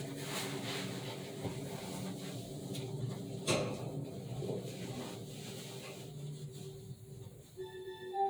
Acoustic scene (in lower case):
elevator